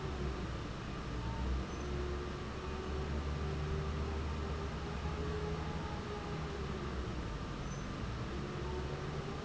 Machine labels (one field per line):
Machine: fan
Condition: normal